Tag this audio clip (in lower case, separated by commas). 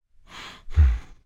respiratory sounds, breathing